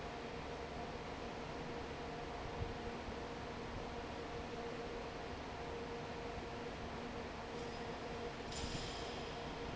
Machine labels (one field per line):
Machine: fan